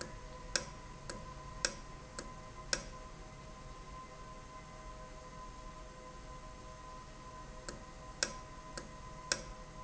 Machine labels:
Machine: valve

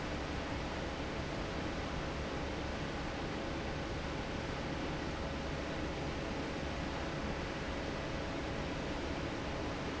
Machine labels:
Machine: fan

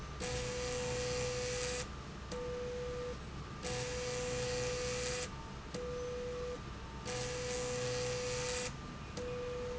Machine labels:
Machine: slide rail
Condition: abnormal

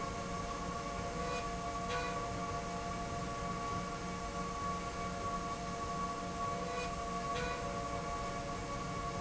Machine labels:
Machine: slide rail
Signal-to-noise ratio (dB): -6 dB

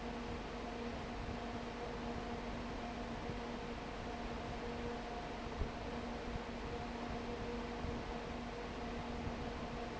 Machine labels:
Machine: fan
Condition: abnormal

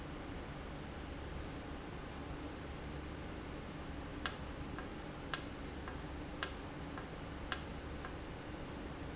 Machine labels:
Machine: valve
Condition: normal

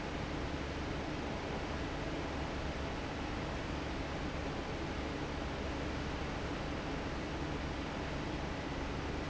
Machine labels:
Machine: fan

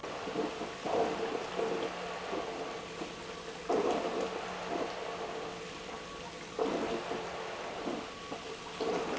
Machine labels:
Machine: pump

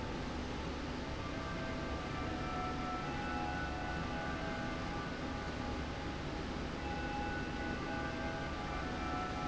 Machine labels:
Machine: slide rail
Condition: normal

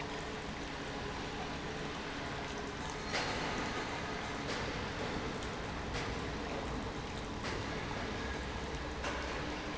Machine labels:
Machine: pump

